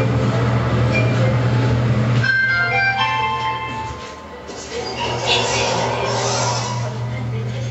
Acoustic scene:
elevator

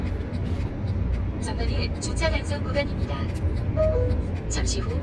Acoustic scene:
car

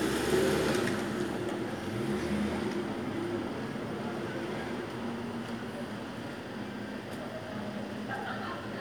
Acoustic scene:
street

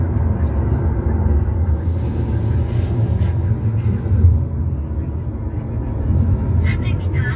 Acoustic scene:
car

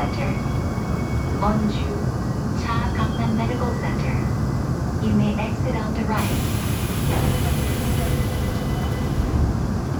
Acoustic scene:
subway train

